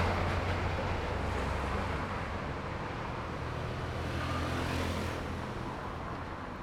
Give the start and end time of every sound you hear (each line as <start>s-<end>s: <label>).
0.0s-2.2s: truck
0.0s-6.6s: bus
0.7s-6.6s: car
0.7s-6.6s: car wheels rolling
3.9s-6.6s: motorcycle
3.9s-6.6s: motorcycle engine accelerating
5.1s-6.6s: bus engine idling